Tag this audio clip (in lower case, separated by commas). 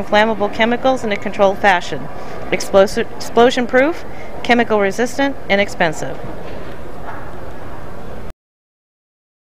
speech